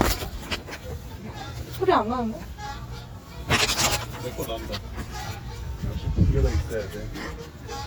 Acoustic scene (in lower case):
park